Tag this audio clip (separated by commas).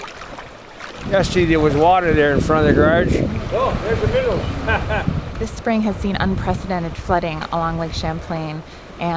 Speech